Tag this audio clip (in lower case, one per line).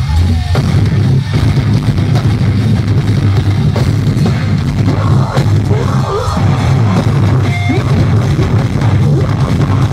music